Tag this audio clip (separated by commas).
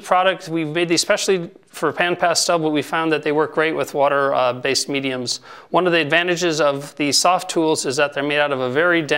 Speech